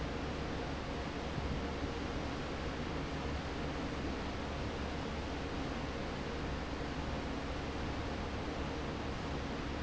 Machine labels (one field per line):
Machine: fan